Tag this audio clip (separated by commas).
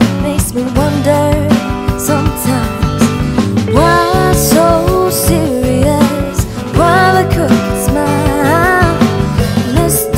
Funk, Music